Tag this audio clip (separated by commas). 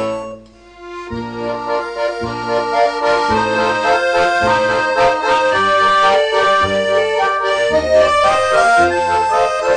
Musical instrument, Classical music, Music, Accordion